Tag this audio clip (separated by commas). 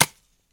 Tap